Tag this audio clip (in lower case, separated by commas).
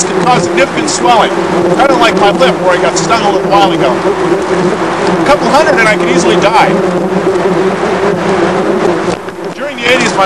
speech